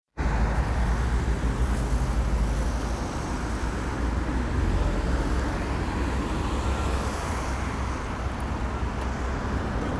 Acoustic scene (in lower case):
street